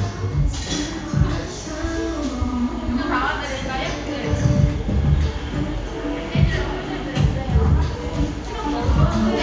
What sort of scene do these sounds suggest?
cafe